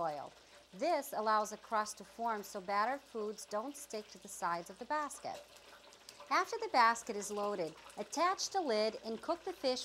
A woman talking as something sizzles